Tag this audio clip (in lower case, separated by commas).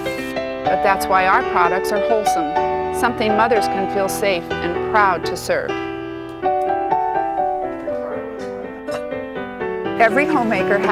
speech, music